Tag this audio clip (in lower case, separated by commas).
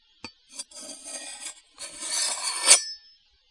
cutlery, home sounds